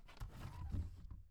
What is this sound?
plastic drawer opening